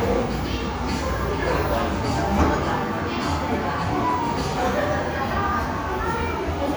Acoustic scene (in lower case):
crowded indoor space